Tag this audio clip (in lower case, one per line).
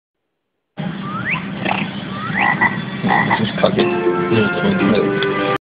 frog
croak